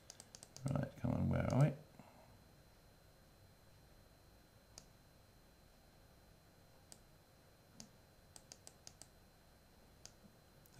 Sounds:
Computer keyboard

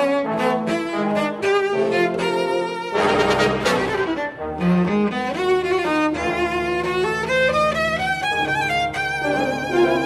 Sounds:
Musical instrument, Cello, Music

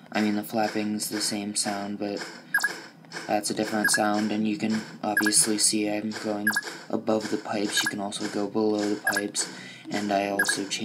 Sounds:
Speech

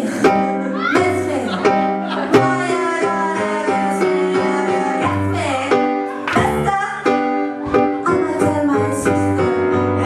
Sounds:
Music

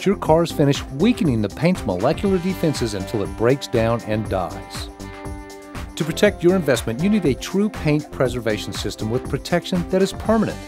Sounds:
Speech, Music

